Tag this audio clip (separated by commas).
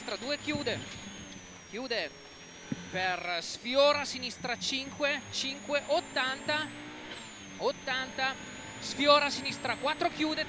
Car, Vehicle, Speech, Motor vehicle (road)